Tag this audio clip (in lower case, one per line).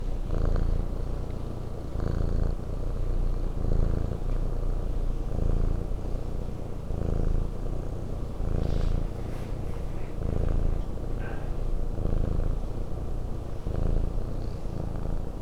cat
animal
pets
purr